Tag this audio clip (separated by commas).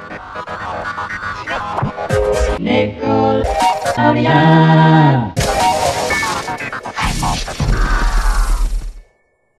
Speech, Music